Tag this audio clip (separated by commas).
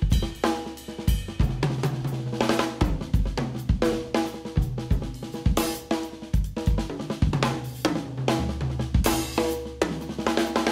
Drum, Music, playing drum kit, Musical instrument, Drum kit